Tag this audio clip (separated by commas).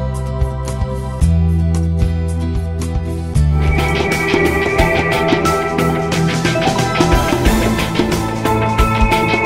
Music